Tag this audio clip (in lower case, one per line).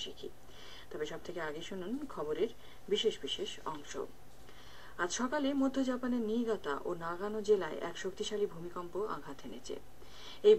speech